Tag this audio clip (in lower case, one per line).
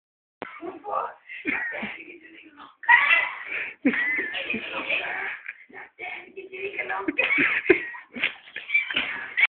speech